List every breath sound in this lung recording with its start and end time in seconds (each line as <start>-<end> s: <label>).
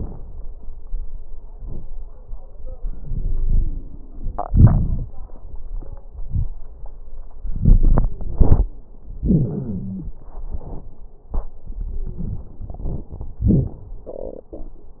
2.81-4.42 s: inhalation
2.81-4.42 s: wheeze
4.47-5.05 s: exhalation
4.47-5.05 s: crackles
7.53-8.15 s: inhalation
7.53-8.15 s: crackles
8.12-8.74 s: exhalation
8.14-8.97 s: wheeze
9.16-10.21 s: inhalation
9.16-10.21 s: wheeze
10.25-10.94 s: exhalation
11.68-13.01 s: wheeze
13.40-13.88 s: exhalation
13.40-13.88 s: crackles